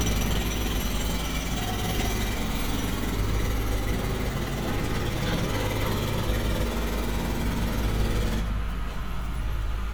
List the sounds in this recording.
unidentified impact machinery